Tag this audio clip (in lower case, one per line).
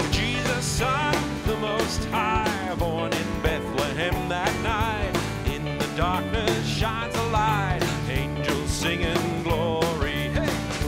music
male singing